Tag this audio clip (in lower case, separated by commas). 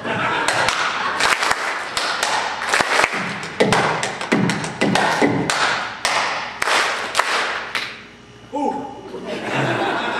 percussion